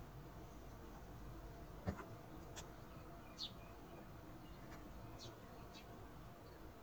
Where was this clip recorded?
in a park